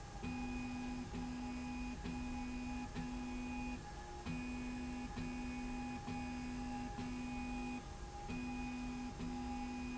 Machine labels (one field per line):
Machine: slide rail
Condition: normal